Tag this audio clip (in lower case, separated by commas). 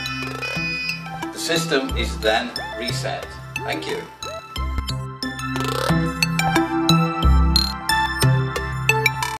music, speech